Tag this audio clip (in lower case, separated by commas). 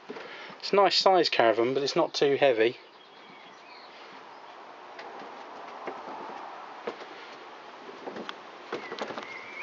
speech